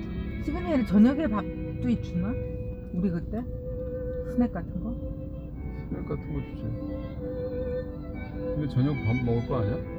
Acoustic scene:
car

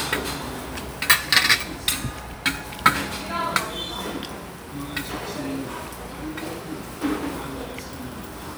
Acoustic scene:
restaurant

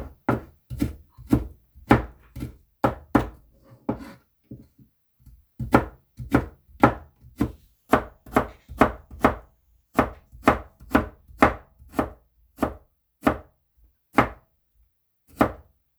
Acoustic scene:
kitchen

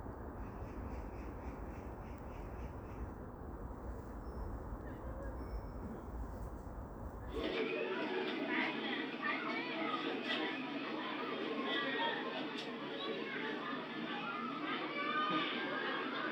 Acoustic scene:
park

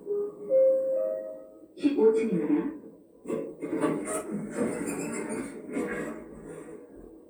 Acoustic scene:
elevator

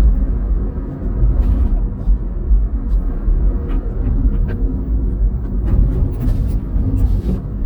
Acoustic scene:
car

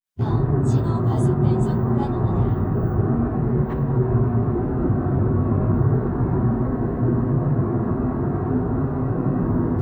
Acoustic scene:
car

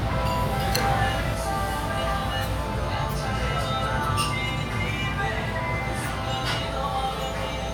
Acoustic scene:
restaurant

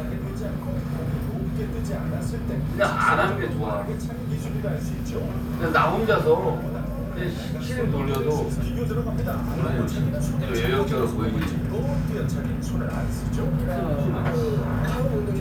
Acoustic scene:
restaurant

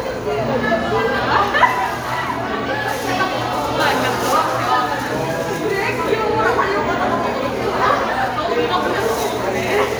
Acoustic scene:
crowded indoor space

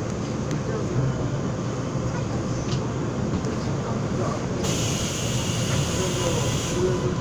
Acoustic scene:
subway train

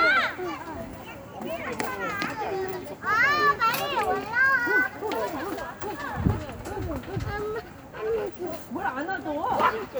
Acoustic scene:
residential area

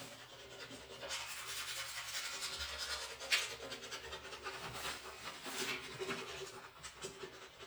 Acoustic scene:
restroom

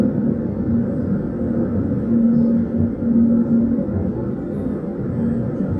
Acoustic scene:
subway train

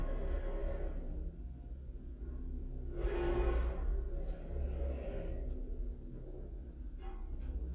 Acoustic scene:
elevator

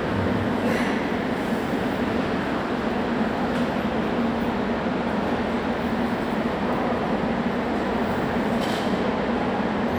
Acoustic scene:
subway station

